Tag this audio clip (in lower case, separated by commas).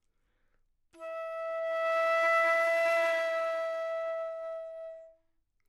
musical instrument, wind instrument, music